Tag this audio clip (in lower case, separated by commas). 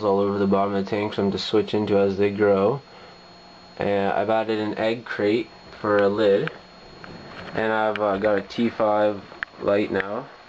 speech